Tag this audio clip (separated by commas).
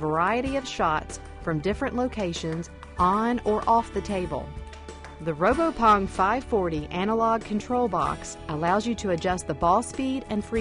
Speech, Music